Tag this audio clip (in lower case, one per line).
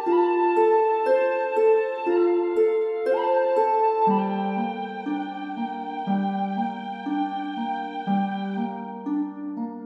piano
keyboard (musical)